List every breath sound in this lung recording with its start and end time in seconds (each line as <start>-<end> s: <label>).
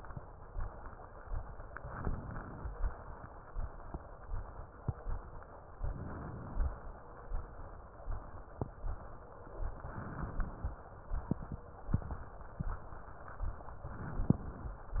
1.83-2.69 s: inhalation
5.75-6.75 s: inhalation
9.81-10.81 s: inhalation
13.91-14.81 s: inhalation